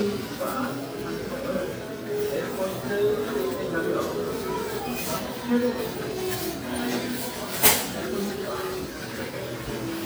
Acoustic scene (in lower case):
crowded indoor space